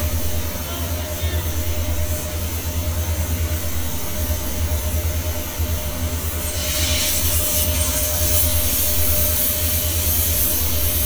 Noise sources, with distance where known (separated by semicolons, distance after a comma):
engine of unclear size; person or small group shouting